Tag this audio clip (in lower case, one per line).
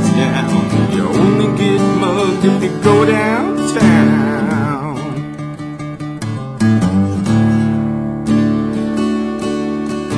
guitar
acoustic guitar
music
plucked string instrument
strum
musical instrument